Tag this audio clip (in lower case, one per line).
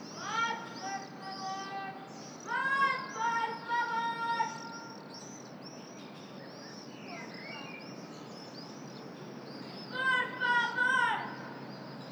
human voice
shout